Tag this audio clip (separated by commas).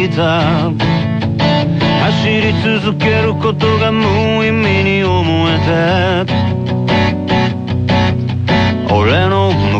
Music